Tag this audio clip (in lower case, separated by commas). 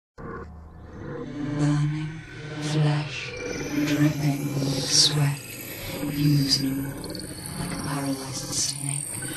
speech